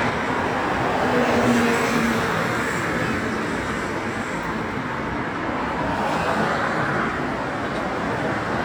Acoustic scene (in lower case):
street